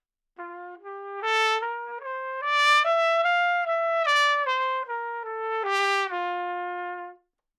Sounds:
music, musical instrument, trumpet, brass instrument

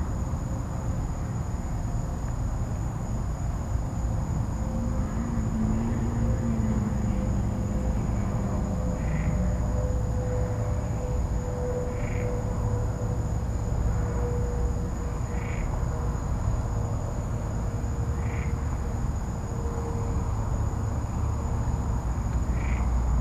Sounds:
wild animals, frog, animal, insect

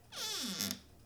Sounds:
domestic sounds, squeak, cupboard open or close, door

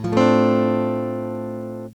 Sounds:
strum, acoustic guitar, plucked string instrument, guitar, musical instrument, music

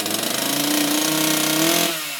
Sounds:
accelerating, engine

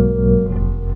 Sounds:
keyboard (musical), music, piano, musical instrument

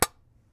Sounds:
tap

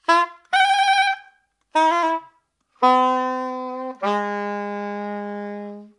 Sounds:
music, musical instrument, wind instrument

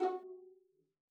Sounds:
bowed string instrument, music, musical instrument

